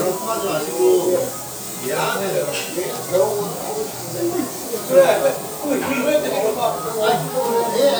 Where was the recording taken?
in a restaurant